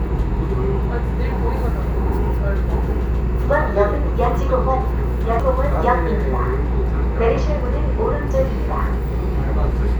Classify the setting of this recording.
subway train